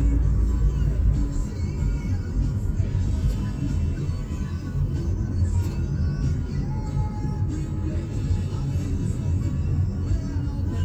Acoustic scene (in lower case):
car